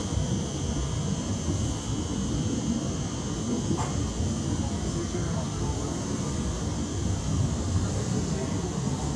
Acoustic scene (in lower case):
subway train